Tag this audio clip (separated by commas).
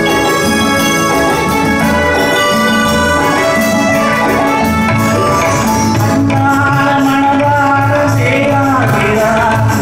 Music, Singing